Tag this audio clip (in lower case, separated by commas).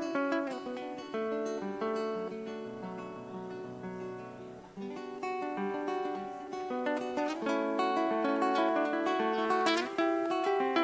music, classical music